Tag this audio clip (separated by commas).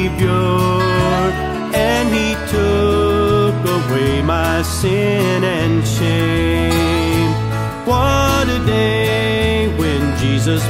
Music